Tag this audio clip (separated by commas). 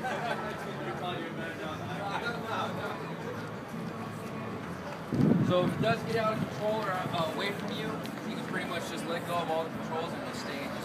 Speech